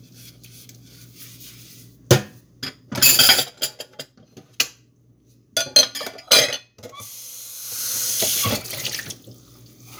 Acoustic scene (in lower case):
kitchen